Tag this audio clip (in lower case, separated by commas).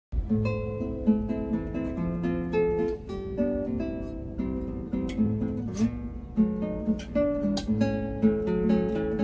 music, guitar